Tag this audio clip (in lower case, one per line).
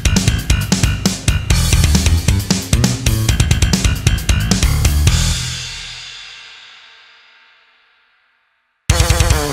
playing bass drum